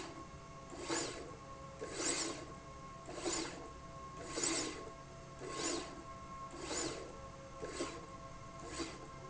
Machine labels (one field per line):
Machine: slide rail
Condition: abnormal